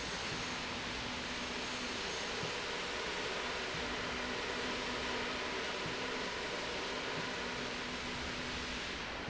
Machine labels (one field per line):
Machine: slide rail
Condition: normal